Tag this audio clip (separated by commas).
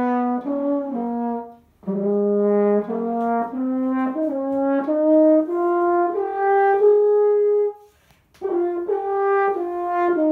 playing french horn